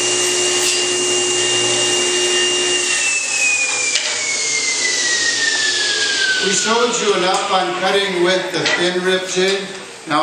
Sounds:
speech, tools

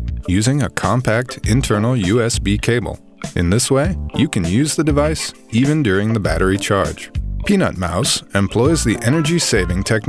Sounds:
speech, music

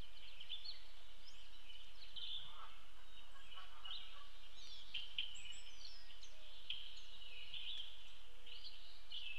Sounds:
baltimore oriole calling

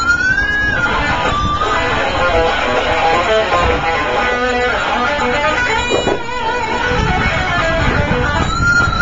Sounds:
music, musical instrument, guitar, plucked string instrument

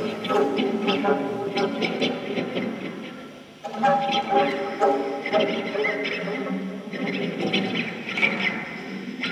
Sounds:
plucked string instrument

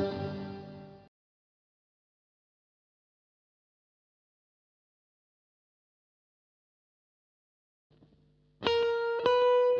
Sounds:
music, steel guitar

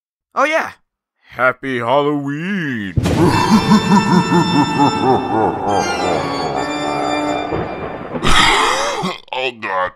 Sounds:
music, speech

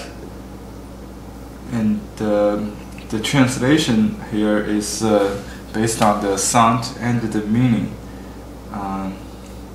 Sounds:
speech

